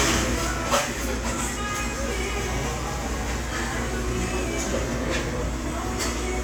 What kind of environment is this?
restaurant